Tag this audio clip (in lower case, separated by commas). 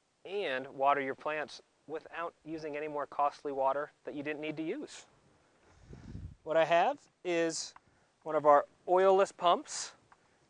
speech